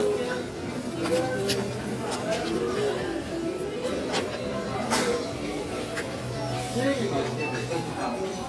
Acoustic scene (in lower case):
crowded indoor space